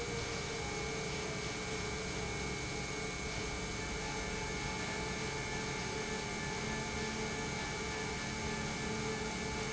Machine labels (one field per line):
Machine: pump